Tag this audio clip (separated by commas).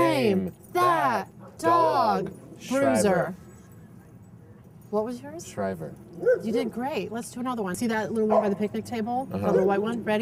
Speech, outside, urban or man-made